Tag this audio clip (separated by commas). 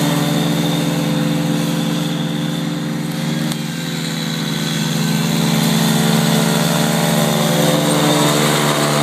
Vehicle, Lawn mower, lawn mowing